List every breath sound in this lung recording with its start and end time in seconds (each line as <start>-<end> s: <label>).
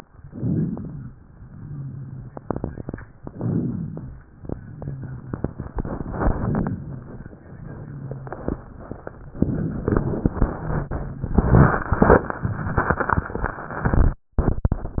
0.19-1.10 s: inhalation
0.19-1.10 s: crackles
1.39-2.37 s: exhalation
1.39-2.37 s: rhonchi
3.23-4.21 s: inhalation
3.23-4.21 s: crackles